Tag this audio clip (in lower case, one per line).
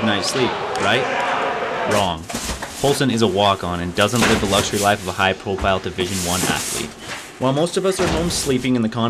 inside a public space
inside a large room or hall
speech